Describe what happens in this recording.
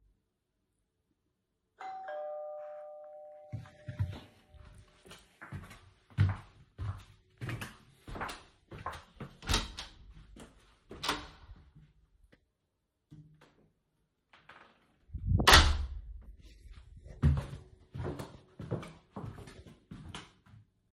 The phone was carried on the person throughout the recording. The doorbell rang and the person got up from a sofa and walked from the living_room to the hallway. The door was opened and left open for about 3 seconds before being closed. The person then walked back to the living_room.